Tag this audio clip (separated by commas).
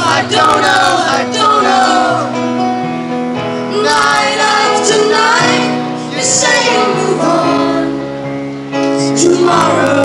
Music